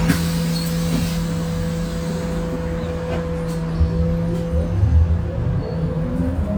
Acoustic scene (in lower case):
bus